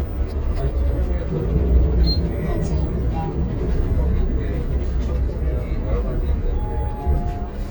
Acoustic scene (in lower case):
bus